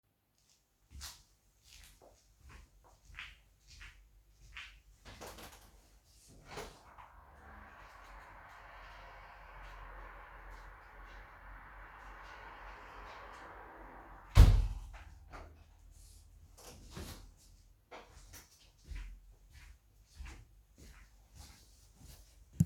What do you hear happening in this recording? I walked to open the window, sightsighted the highway and then closed the window and got back.